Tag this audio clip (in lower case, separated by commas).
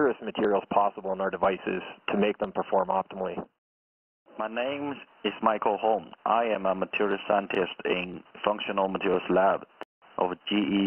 radio, speech